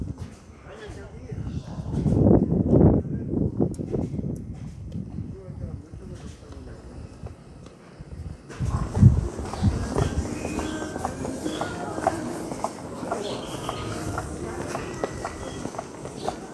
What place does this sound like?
residential area